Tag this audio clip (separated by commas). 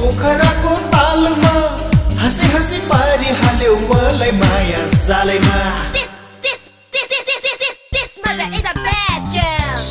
Singing, Music